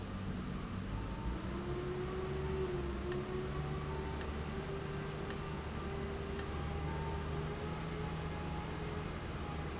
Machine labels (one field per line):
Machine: valve